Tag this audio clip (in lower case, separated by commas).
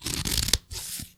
home sounds, scissors